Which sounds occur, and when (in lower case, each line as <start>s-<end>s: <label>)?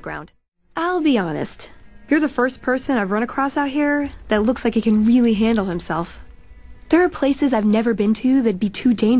0.0s-0.3s: female speech
0.0s-9.1s: video game sound
0.7s-1.7s: female speech
1.7s-9.1s: music
2.0s-4.1s: female speech
4.2s-6.2s: female speech
6.9s-9.1s: female speech